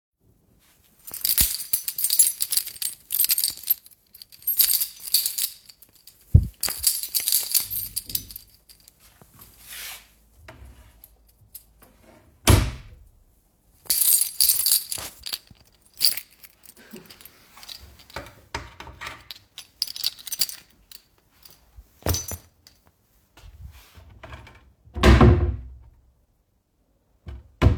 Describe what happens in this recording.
I am using the keychain. In the same time I open and close the drawer